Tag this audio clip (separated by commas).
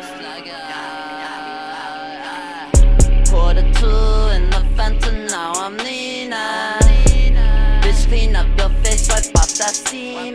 Music